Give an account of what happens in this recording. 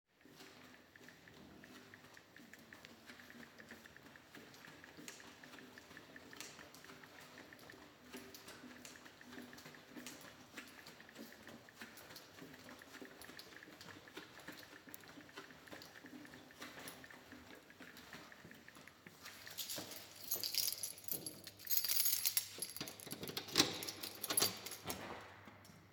I was walking in the hallway with a friend, who was typing a message on her mobile, then we opened the door and entered the room.